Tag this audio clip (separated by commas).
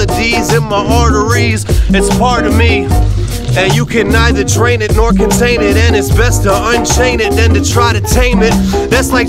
rapping